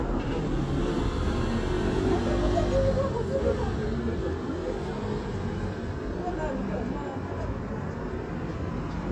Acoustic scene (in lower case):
street